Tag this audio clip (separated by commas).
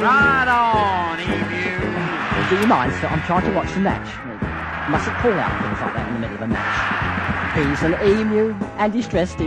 Male singing, Music, Speech